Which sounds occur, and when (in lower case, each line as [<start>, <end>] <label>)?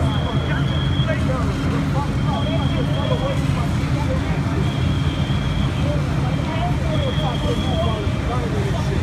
[0.00, 1.07] fire alarm
[0.00, 9.02] speech noise
[0.00, 9.02] mechanisms
[0.00, 9.02] truck
[2.30, 3.40] fire alarm
[4.61, 5.69] fire alarm
[6.37, 6.49] tick
[6.91, 7.90] fire alarm